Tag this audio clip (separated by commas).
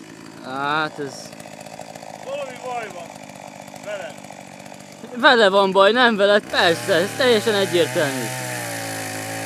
Chainsaw, Speech